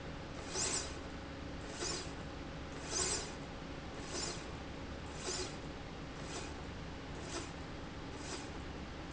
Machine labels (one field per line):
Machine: slide rail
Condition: normal